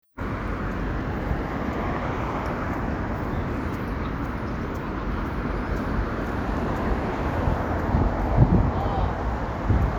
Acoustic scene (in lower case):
street